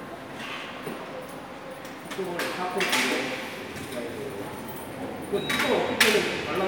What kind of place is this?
subway station